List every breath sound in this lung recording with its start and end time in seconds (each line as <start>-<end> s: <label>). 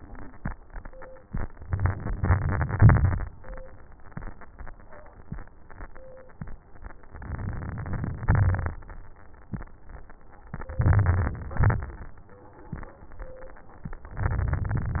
1.63-3.00 s: inhalation
3.03-3.87 s: exhalation
7.08-8.28 s: inhalation
8.24-9.27 s: exhalation
8.28-9.26 s: crackles
10.52-11.57 s: crackles
10.54-11.56 s: inhalation
11.60-12.65 s: crackles
11.63-12.66 s: exhalation
14.16-15.00 s: inhalation
14.18-15.00 s: crackles